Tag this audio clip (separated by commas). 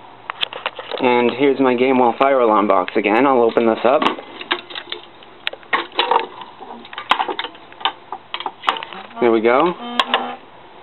Speech